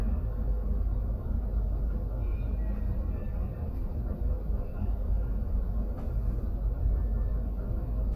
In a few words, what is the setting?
bus